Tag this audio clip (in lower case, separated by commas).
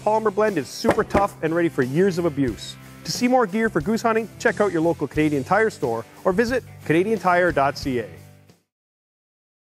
music, speech